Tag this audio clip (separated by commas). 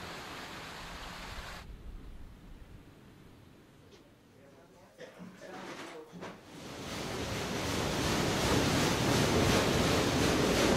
Speech